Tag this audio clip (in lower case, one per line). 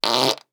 fart